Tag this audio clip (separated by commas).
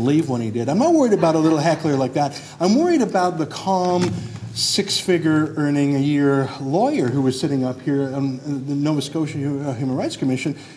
man speaking, Speech